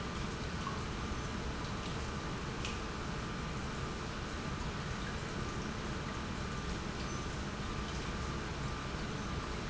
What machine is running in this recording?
pump